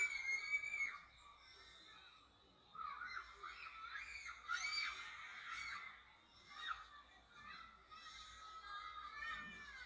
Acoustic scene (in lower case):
residential area